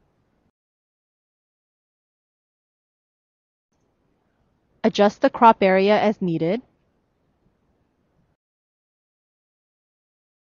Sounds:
Silence, inside a small room, Speech

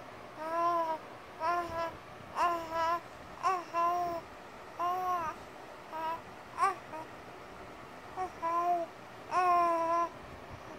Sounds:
people babbling

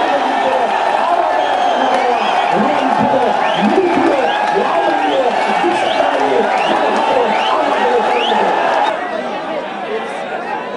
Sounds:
Male speech, Speech, Narration

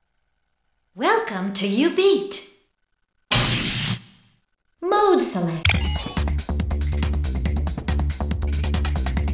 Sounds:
Speech, Music

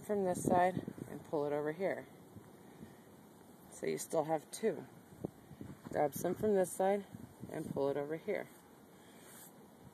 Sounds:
Speech

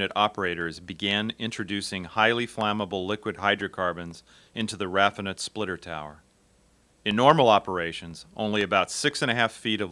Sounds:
Speech

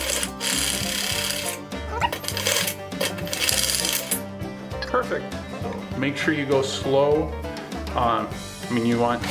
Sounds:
Speech, Music

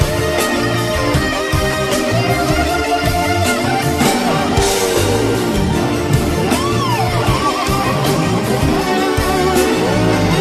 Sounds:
Guitar, Strum, Music, Plucked string instrument, Bass guitar, Musical instrument

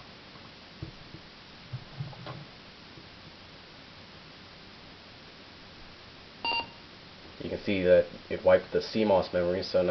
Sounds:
Speech, Beep, Silence

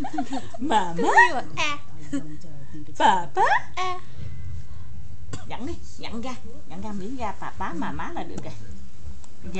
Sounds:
Speech

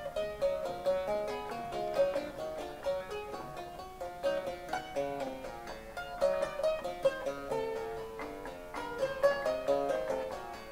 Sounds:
Keyboard (musical), inside a small room, Harpsichord, Musical instrument, Music, Piano

